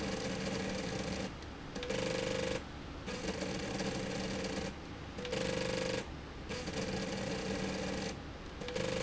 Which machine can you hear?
slide rail